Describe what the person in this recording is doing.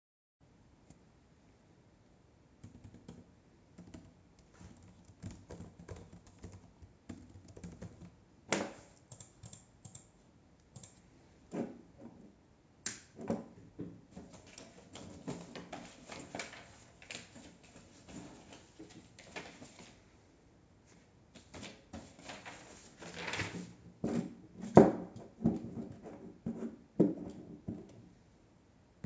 I typed something in on my laptop, clicked the mouse, turned on my desk lamp, grabbed some papers and grabbed a pen out of a cup.